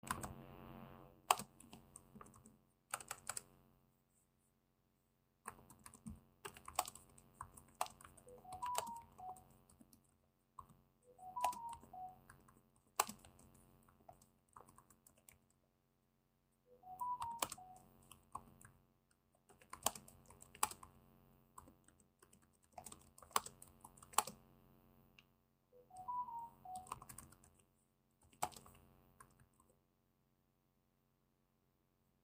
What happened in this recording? I was working on my Notebook as I recieved some messages on my phone